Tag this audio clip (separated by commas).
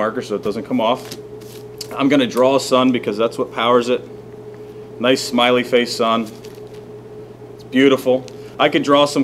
Speech